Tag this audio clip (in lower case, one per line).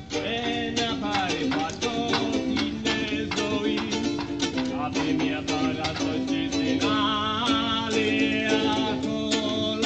playing ukulele